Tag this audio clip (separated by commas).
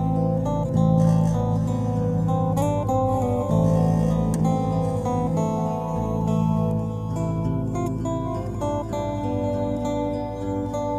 Music